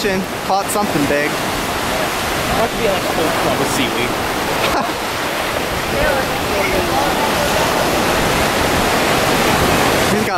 Ocean waves and surf with ruffling wind and people talking